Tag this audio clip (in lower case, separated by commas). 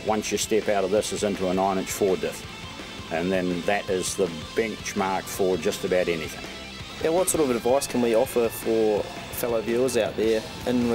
speech, music